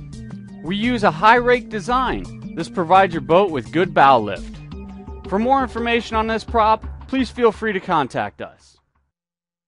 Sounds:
music
speech

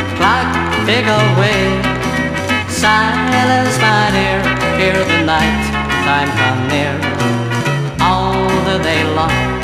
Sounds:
music

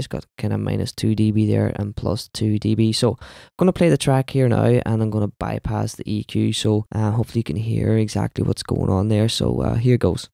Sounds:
speech

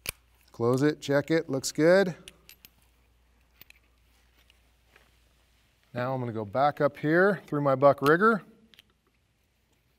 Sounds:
speech

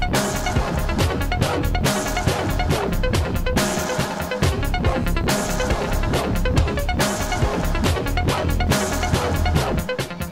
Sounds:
music
dubstep

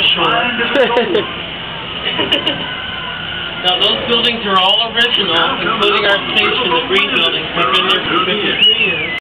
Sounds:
speech

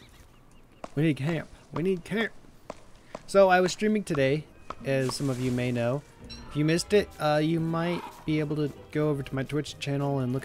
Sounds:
music
speech

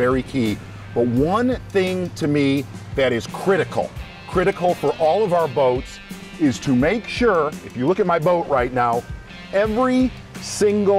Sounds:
music
speech

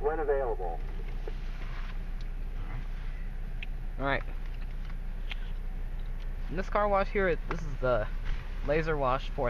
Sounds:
speech

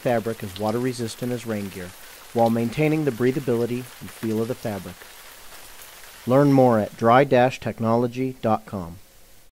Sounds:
speech
stream

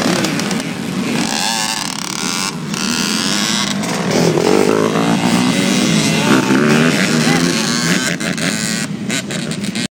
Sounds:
speech

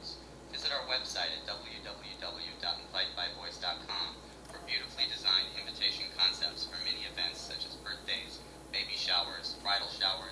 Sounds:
speech

